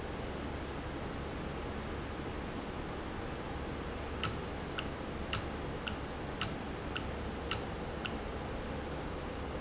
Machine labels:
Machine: valve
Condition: normal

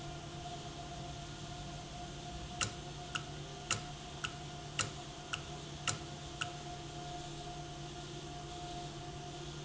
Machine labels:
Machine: valve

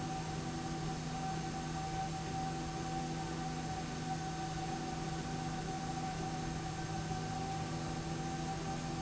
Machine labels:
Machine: slide rail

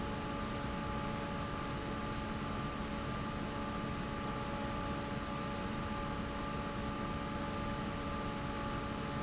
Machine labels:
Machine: fan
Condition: normal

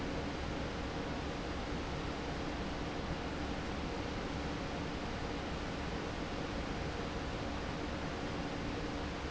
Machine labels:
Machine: fan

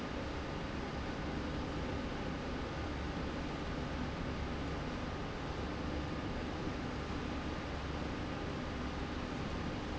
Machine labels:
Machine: slide rail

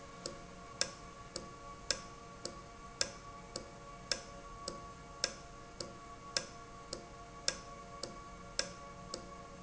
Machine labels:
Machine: valve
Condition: normal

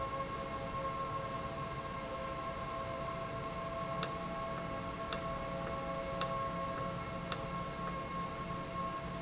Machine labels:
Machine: valve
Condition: normal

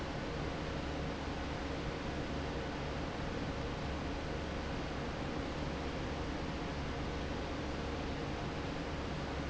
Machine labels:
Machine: fan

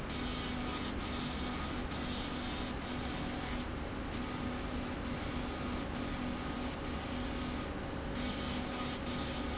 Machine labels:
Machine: slide rail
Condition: abnormal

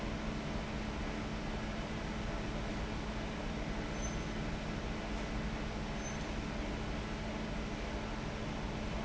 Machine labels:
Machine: fan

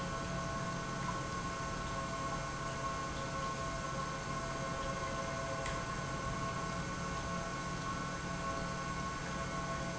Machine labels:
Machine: pump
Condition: normal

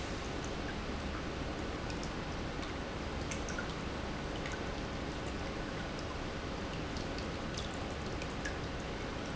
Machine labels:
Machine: pump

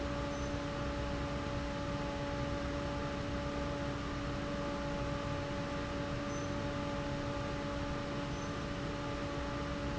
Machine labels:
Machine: fan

